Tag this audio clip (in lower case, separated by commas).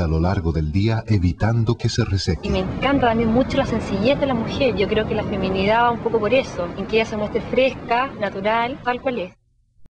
speech